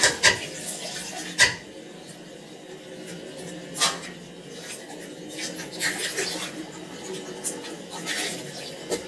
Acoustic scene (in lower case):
restroom